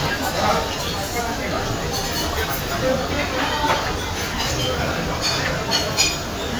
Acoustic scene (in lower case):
crowded indoor space